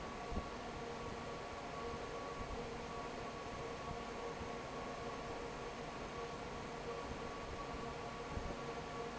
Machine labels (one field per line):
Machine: fan